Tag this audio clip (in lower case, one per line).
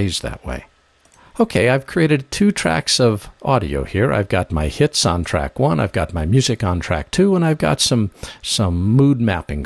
speech